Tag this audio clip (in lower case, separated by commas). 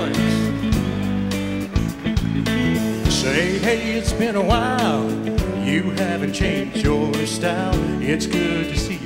music, bluegrass, country